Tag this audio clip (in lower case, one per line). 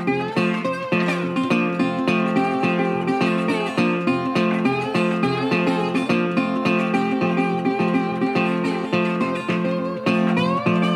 music